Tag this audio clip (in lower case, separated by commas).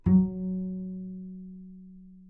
bowed string instrument, music, musical instrument